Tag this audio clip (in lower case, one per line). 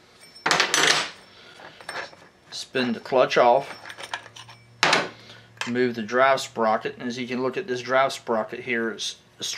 speech